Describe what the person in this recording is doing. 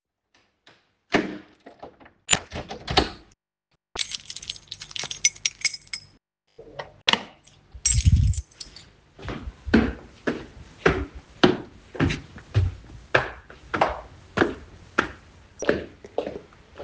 I unlocked the door, took the keys out, opened and closed the door as I was holding the keychain, and walked upstairs.